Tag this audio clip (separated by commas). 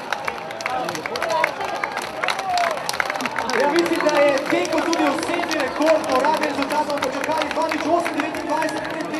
outside, urban or man-made, Speech